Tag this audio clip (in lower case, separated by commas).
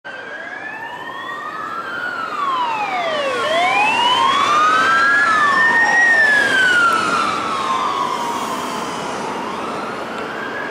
siren, police car (siren), emergency vehicle